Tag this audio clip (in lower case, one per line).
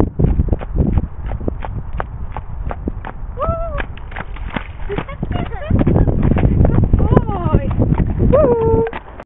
horse clip-clop
clip-clop
speech